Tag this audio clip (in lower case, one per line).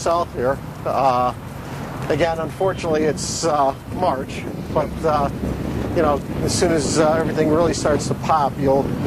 footsteps
speech